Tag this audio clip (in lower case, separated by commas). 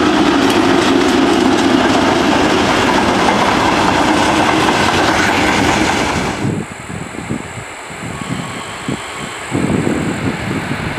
rail transport, train, clickety-clack, train wagon